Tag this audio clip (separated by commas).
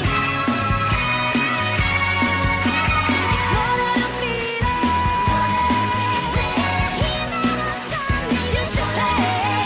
Music